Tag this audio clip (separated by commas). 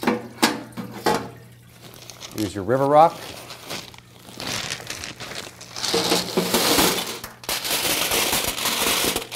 Speech